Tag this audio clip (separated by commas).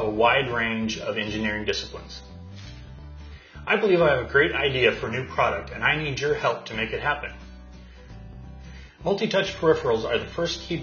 Speech, Music